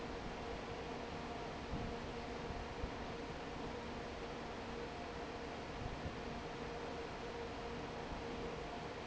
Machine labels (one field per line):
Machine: fan